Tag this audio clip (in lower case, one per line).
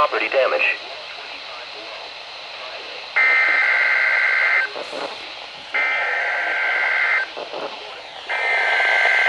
speech